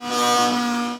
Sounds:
domestic sounds

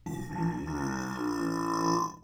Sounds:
eructation

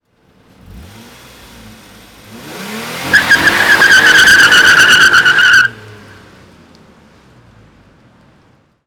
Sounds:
motor vehicle (road)
car
engine
vehicle
vroom

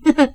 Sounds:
human voice
giggle
laughter

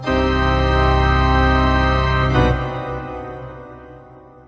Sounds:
keyboard (musical)
musical instrument
music
organ

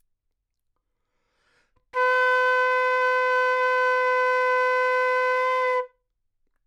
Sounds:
musical instrument
woodwind instrument
music

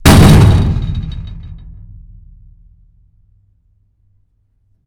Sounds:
door
domestic sounds
slam

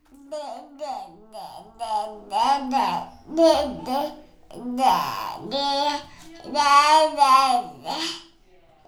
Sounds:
human voice
speech

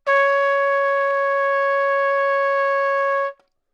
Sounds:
musical instrument
trumpet
music
brass instrument

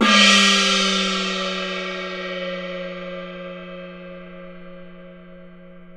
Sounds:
musical instrument
gong
percussion
music

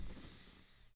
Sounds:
breathing
respiratory sounds

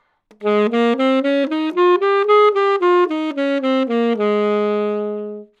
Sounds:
music
woodwind instrument
musical instrument

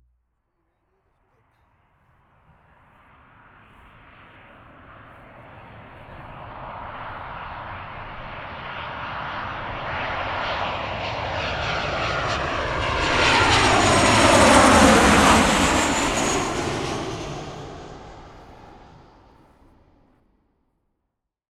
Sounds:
aircraft
vehicle

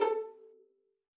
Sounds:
musical instrument
bowed string instrument
music

